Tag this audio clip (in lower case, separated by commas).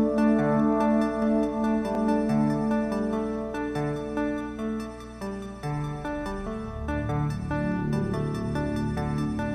music